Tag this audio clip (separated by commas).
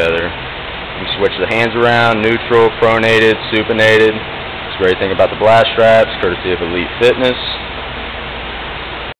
Speech